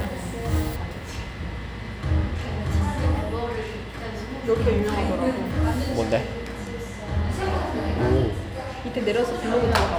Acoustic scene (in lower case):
cafe